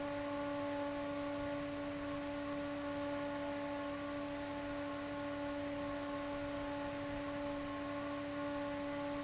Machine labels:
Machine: fan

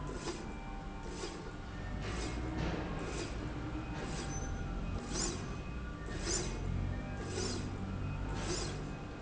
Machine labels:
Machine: slide rail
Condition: normal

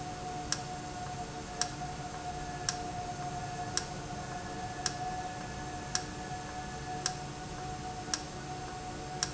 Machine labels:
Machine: valve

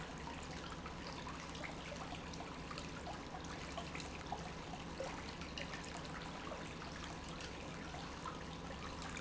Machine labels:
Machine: pump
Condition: normal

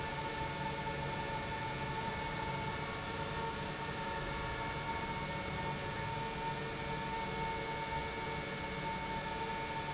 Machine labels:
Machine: pump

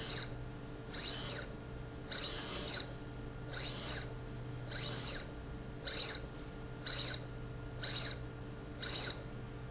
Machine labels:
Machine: slide rail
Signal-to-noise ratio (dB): 0 dB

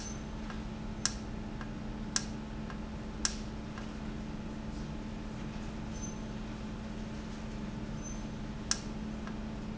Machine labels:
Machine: valve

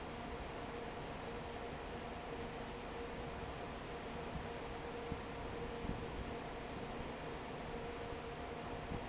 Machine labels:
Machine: fan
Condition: normal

